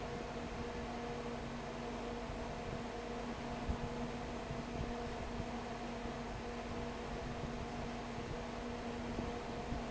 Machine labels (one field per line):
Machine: fan